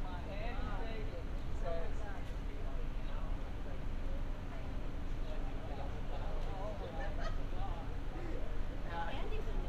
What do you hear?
person or small group talking